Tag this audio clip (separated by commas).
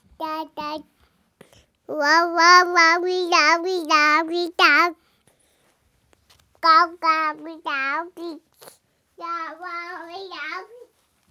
Speech, Human voice